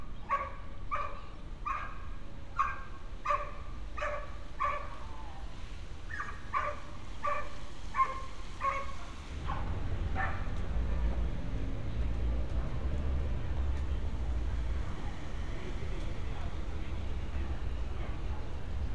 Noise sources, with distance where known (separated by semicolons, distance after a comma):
dog barking or whining